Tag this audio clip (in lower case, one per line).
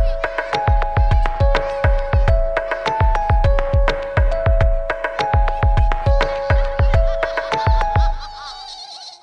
music